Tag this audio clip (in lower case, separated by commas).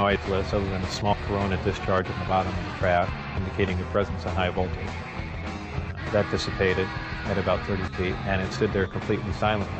music, speech